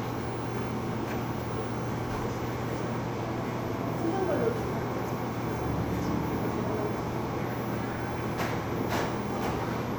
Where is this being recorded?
in a cafe